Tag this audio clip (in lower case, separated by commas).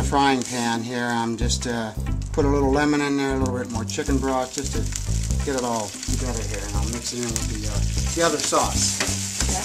sizzle